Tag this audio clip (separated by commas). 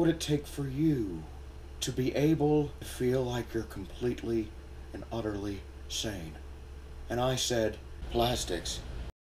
Speech